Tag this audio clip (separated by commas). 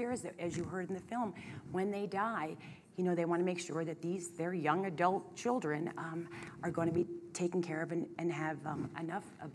inside a small room, Speech